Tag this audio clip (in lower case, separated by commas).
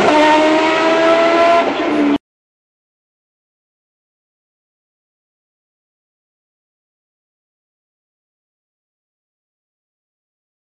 motor vehicle (road), vehicle, car